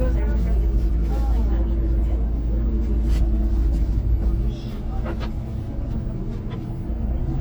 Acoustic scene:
bus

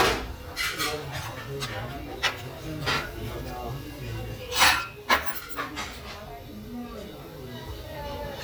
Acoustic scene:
restaurant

